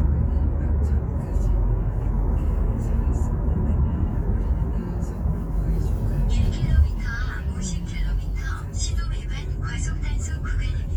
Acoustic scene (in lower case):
car